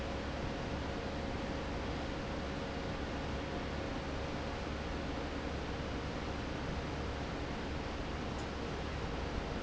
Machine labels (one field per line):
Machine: fan